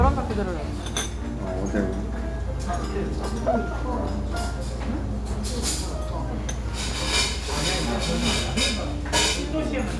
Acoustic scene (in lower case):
restaurant